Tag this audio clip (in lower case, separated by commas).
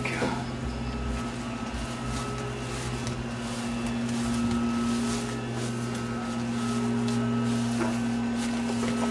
speech